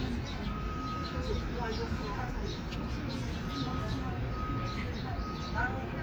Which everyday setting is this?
park